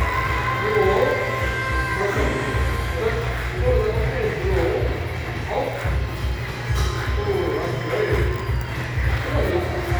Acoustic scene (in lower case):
crowded indoor space